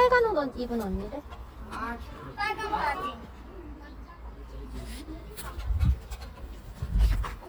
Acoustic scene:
park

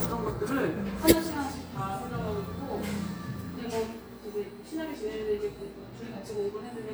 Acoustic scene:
cafe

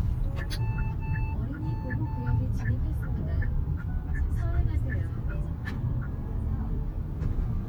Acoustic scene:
car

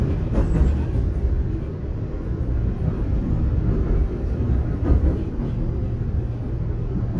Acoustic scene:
subway train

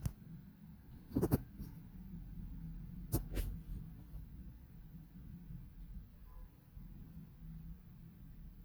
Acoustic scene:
residential area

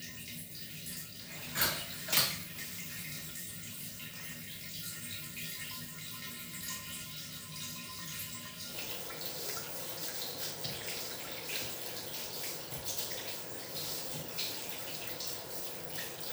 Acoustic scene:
restroom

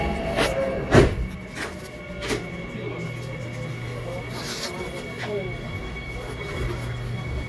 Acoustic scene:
subway train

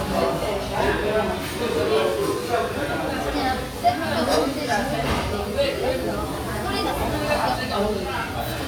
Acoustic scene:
restaurant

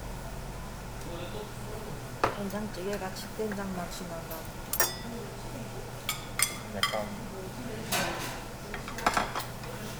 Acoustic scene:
restaurant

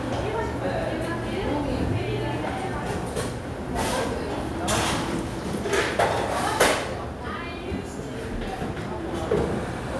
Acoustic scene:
cafe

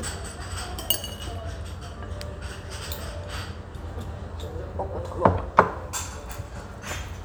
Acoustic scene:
restaurant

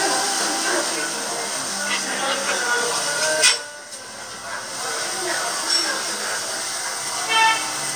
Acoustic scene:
restaurant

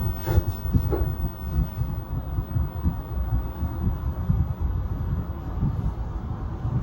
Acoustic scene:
elevator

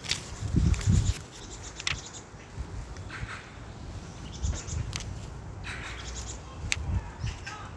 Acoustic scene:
park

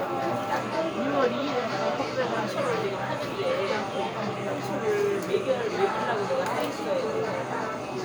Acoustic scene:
crowded indoor space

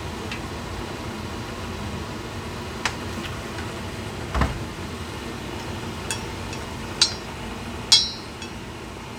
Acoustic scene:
kitchen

